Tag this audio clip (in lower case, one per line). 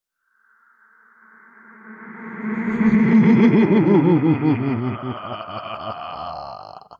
laughter
human voice